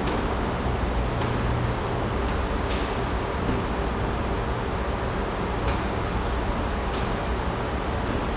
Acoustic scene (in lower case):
subway station